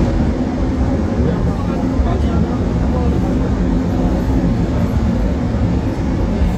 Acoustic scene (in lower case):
subway train